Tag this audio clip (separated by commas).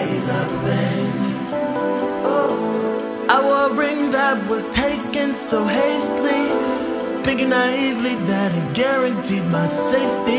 Music